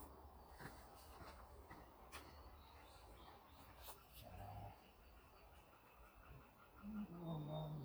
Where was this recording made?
in a park